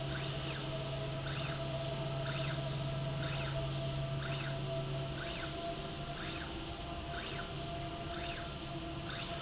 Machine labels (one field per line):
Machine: slide rail